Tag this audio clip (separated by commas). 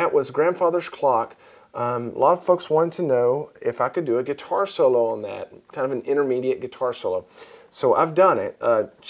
Speech